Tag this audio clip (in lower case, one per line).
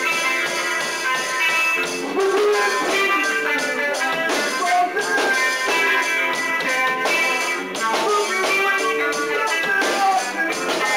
music